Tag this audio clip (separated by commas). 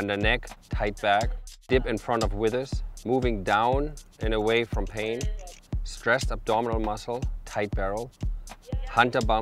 Speech, Music